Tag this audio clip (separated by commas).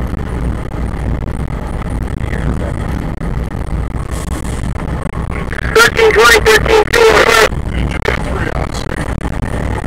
Speech, Vehicle